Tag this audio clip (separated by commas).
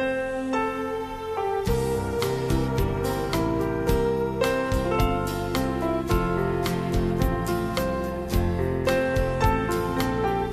Music